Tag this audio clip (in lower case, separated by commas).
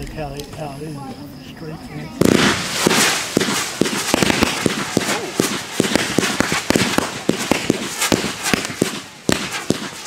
fireworks